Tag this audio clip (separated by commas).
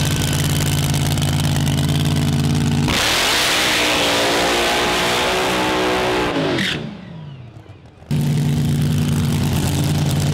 Car, Accelerating, Heavy engine (low frequency), Engine, Vehicle